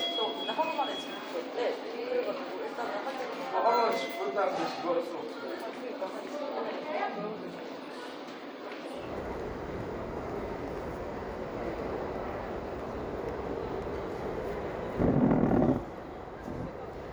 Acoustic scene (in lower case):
crowded indoor space